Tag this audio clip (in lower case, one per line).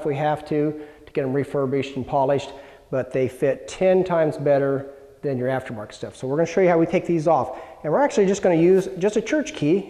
speech